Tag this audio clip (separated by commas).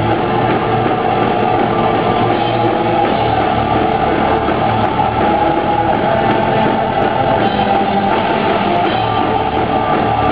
Music